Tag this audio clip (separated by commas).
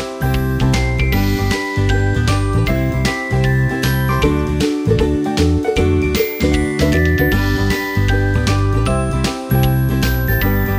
Music